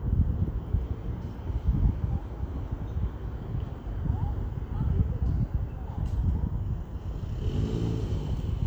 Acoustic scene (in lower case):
residential area